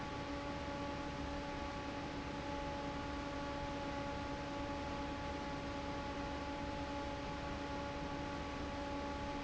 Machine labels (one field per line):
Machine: fan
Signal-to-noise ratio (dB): 0 dB